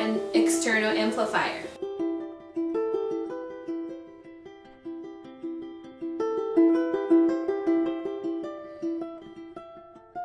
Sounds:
inside a small room, music, speech

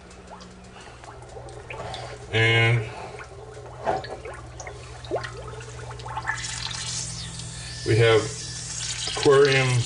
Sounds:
inside a small room, drip, speech

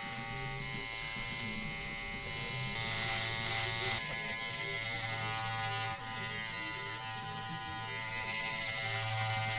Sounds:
cutting hair with electric trimmers

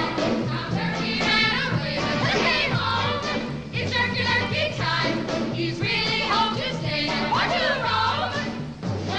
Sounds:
music

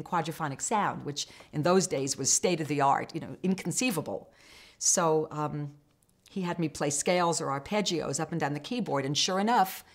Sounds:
speech

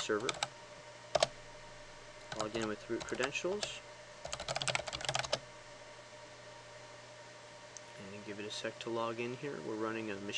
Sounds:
computer keyboard, typing

